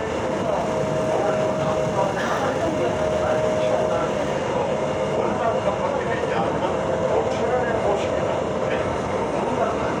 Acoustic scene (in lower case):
subway train